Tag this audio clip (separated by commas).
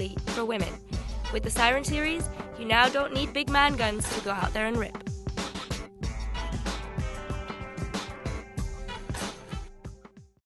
Music, Speech